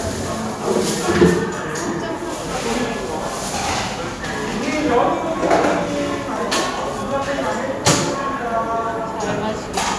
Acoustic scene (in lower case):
cafe